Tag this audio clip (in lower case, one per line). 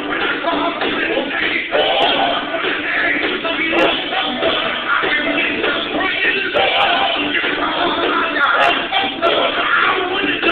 male singing
choir
music